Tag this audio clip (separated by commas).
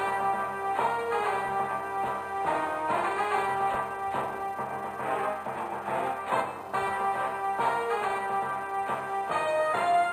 Music, Soundtrack music